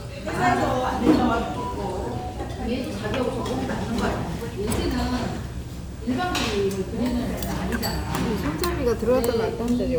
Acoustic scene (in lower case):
restaurant